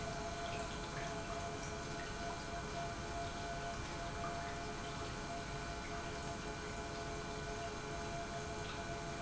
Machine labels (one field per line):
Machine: pump